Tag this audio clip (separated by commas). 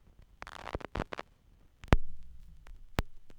Crackle